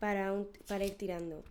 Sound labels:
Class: speech